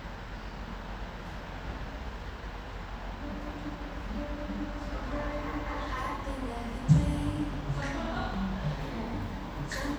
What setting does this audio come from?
cafe